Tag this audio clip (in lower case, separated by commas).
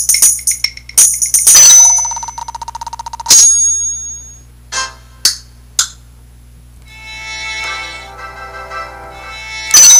music